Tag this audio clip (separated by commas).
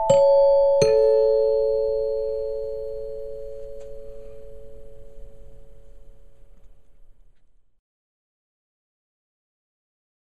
Musical instrument, Glockenspiel, Music